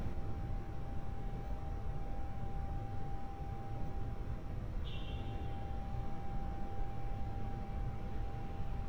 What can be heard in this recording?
car horn